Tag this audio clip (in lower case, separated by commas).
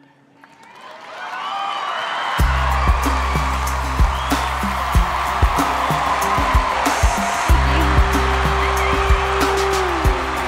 rapping